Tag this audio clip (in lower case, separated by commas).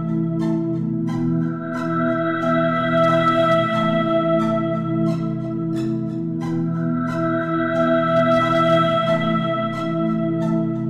music